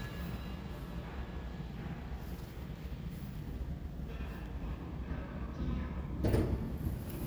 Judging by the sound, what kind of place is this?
elevator